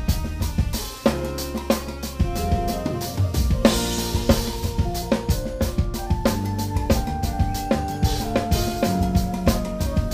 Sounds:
drum, hi-hat, cymbal, music, snare drum, jazz, drum kit, rimshot, musical instrument

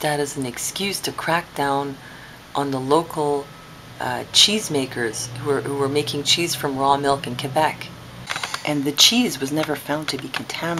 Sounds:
inside a small room, speech

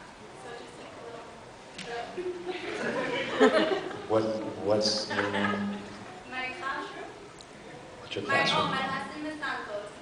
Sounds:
speech

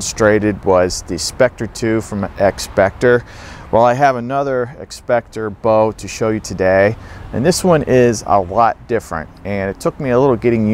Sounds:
speech

